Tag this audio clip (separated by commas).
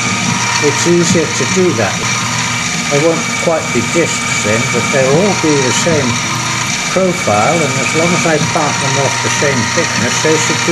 Tools, Speech